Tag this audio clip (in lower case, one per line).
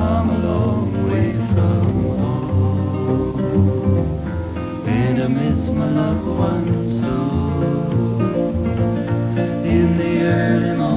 music